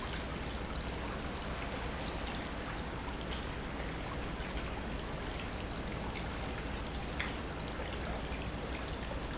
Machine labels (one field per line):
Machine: pump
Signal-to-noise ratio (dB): -6 dB